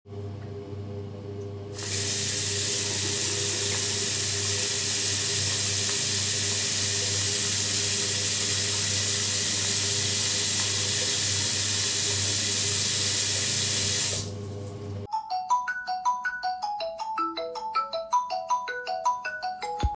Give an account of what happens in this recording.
In the toilet washing my hands and then I get a call